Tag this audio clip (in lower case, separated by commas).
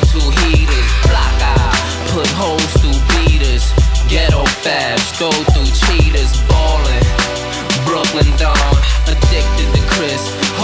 music